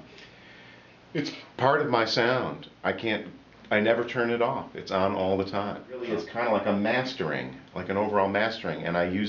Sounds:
Speech

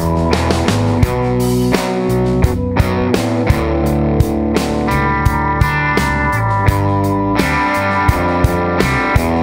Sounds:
Music

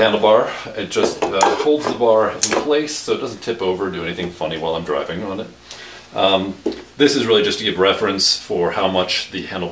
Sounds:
Speech

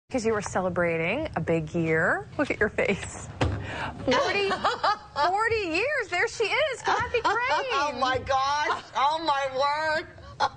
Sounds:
Female speech

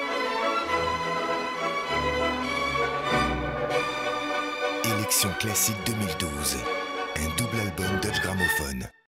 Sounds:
Speech, Music

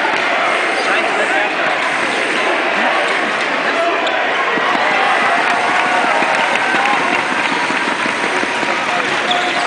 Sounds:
Speech

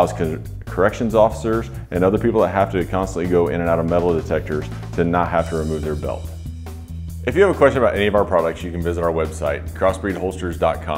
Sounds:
Music, Speech

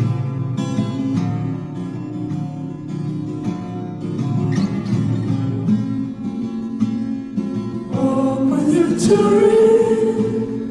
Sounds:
Singing, Vocal music, Music

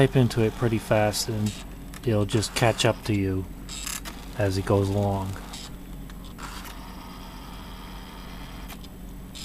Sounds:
Printer, Speech, inside a small room

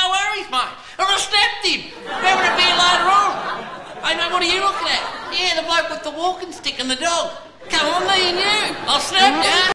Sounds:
Speech

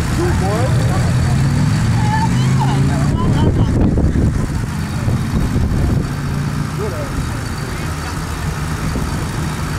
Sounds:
Speech

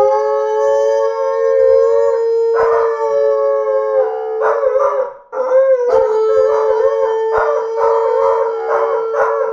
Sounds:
dog howling, Yip

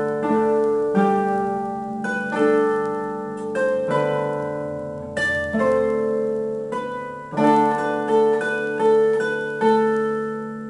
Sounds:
Plucked string instrument, Music, Musical instrument, Harp

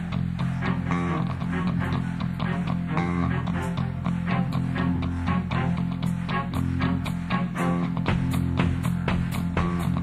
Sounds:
Music

